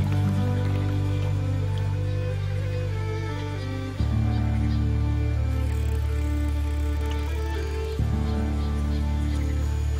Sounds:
music

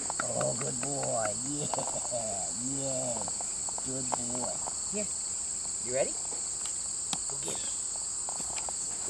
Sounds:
insect
cricket

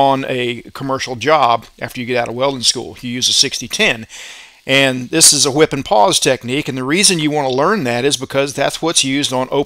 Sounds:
arc welding

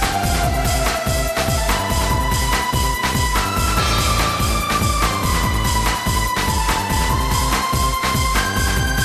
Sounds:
video game music
music

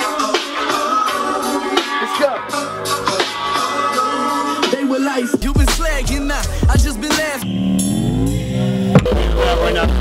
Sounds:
music

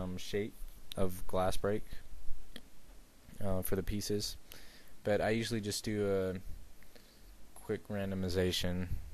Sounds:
speech

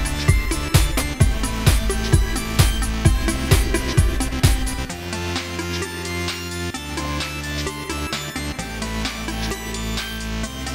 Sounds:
music

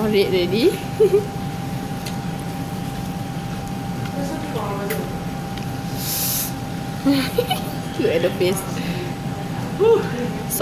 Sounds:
speech

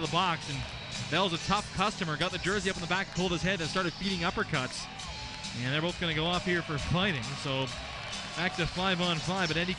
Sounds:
music
jingle bell
speech

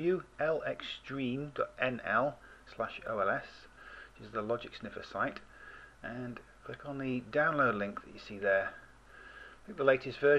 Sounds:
speech

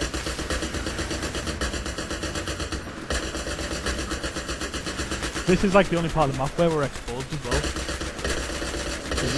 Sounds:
speech

